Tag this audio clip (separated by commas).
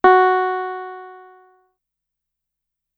Keyboard (musical), Music, Piano, Musical instrument